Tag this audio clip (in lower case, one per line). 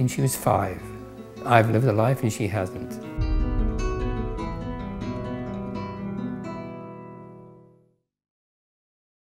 music
speech